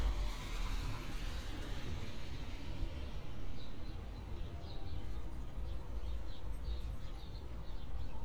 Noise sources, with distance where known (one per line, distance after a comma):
engine of unclear size, far